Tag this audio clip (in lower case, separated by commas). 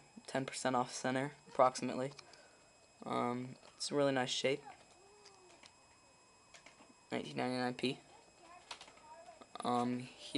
speech, inside a small room